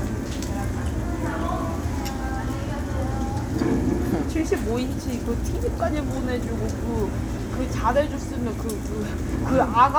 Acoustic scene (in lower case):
crowded indoor space